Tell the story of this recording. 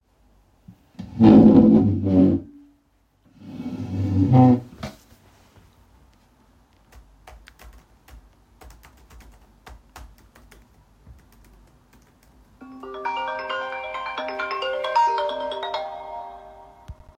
I moved the desk chair, sat on it, started typing on my laptop, and got a phone call.